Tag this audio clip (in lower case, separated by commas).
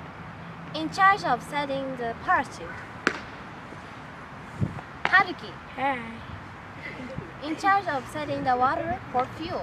speech